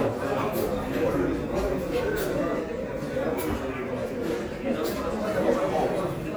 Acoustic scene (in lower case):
crowded indoor space